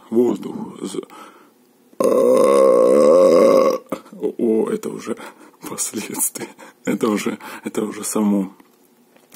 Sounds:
people burping

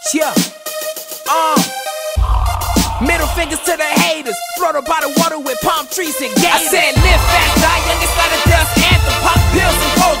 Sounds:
Music

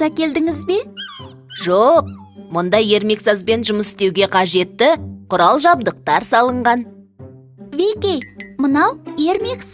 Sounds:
Speech, Music for children, Music

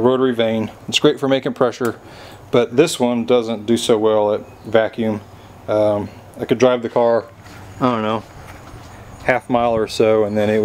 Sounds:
Speech

